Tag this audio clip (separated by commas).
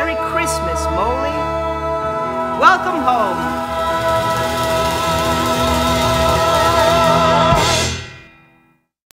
Music, Speech